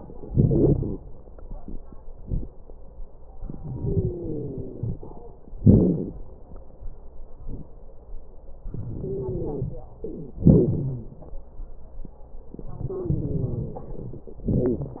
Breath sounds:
0.18-0.97 s: inhalation
0.18-0.97 s: wheeze
3.42-5.05 s: inhalation
3.74-4.98 s: wheeze
5.60-6.14 s: exhalation
5.60-6.14 s: crackles
8.68-9.79 s: inhalation
9.00-9.79 s: wheeze
10.43-11.22 s: exhalation
10.43-11.22 s: wheeze
12.81-13.90 s: wheeze
12.81-14.30 s: inhalation
14.46-15.00 s: exhalation
14.46-15.00 s: wheeze

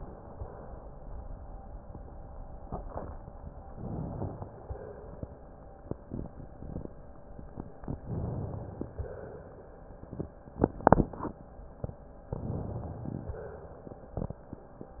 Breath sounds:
3.69-4.54 s: inhalation
4.50-5.41 s: exhalation
8.09-8.99 s: inhalation
8.99-9.82 s: exhalation
12.33-13.38 s: inhalation
13.36-13.91 s: exhalation

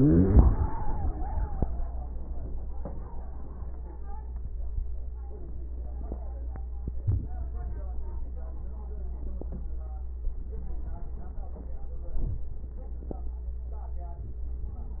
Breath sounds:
7.01-7.32 s: inhalation
12.16-12.47 s: inhalation

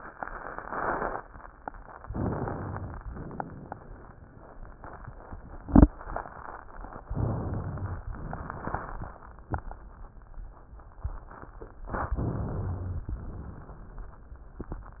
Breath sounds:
2.01-2.95 s: inhalation
2.02-3.01 s: crackles
3.00-4.15 s: exhalation
3.04-4.18 s: crackles
7.09-8.04 s: inhalation
8.21-9.16 s: exhalation
8.21-9.16 s: crackles
12.16-13.03 s: rhonchi
12.16-13.10 s: inhalation
13.10-14.22 s: exhalation
13.10-14.22 s: crackles

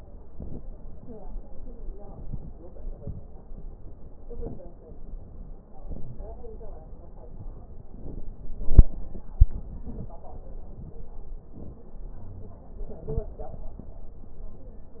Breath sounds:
0.28-0.99 s: inhalation
1.96-2.67 s: inhalation
1.96-2.67 s: crackles
2.68-3.39 s: exhalation
2.68-3.39 s: crackles
4.17-4.88 s: inhalation
4.17-4.88 s: crackles
5.66-6.37 s: inhalation
5.84-6.20 s: wheeze
7.82-8.46 s: crackles
7.83-8.49 s: inhalation
8.49-9.30 s: exhalation
8.49-9.30 s: crackles
9.33-10.16 s: inhalation
9.33-10.16 s: crackles
11.41-12.10 s: inhalation
11.41-12.10 s: crackles
12.23-12.75 s: wheeze
13.03-13.38 s: wheeze

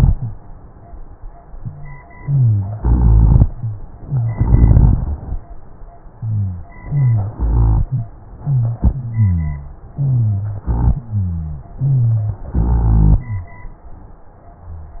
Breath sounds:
0.00-0.34 s: wheeze
2.16-2.77 s: rhonchi
2.18-2.79 s: inhalation
2.79-3.49 s: exhalation
2.79-3.49 s: rhonchi
4.33-5.22 s: exhalation
4.33-5.22 s: rhonchi
6.19-6.72 s: rhonchi
6.85-7.38 s: inhalation
6.85-7.38 s: wheeze
7.38-7.91 s: exhalation
7.38-7.91 s: rhonchi
7.87-8.14 s: wheeze
8.43-8.80 s: wheeze
8.44-8.79 s: inhalation
8.88-9.77 s: exhalation
8.90-9.77 s: wheeze
9.94-10.64 s: inhalation
9.94-10.64 s: wheeze
10.68-11.06 s: exhalation
10.68-11.67 s: rhonchi
11.82-12.43 s: inhalation
11.82-12.43 s: wheeze
12.54-13.24 s: exhalation
12.54-13.24 s: rhonchi

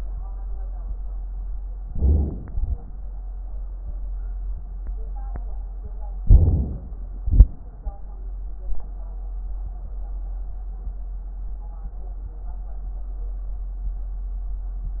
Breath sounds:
1.77-2.45 s: inhalation
2.45-2.81 s: exhalation
6.19-7.26 s: inhalation
7.23-7.59 s: exhalation

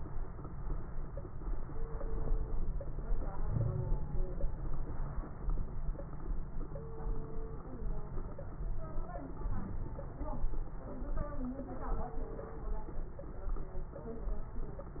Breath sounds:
3.46-4.00 s: wheeze

